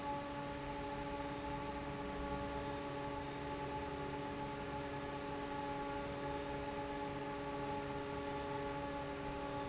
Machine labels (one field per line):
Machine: fan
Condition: normal